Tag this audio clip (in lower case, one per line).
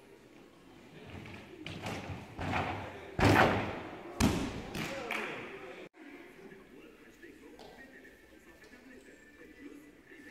speech